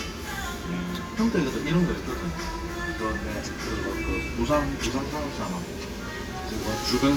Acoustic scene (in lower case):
restaurant